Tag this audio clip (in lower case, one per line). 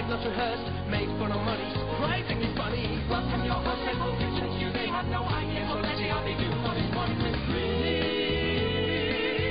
music